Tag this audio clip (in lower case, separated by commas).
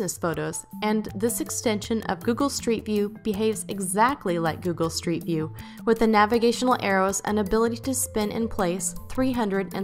music, speech